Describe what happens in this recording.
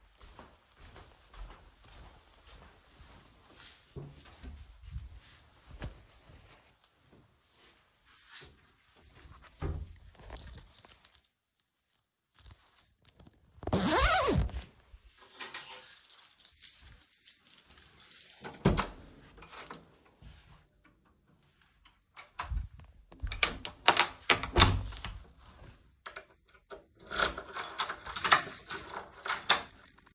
I get out of my chair and walk to the other room. I open my wardrobe, pull out a hoodie, put it on and zip it up. I take my keys, unlock my door, leave, close it and lock it behind me.